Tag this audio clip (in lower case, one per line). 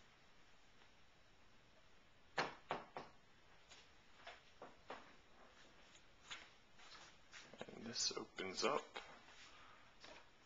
speech